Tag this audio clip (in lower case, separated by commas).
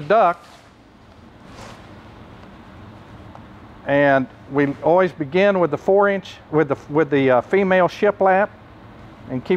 speech